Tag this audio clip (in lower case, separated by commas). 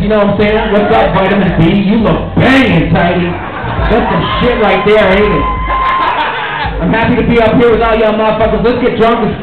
speech